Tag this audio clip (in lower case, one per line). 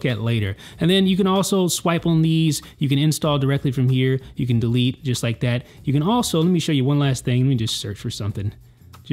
speech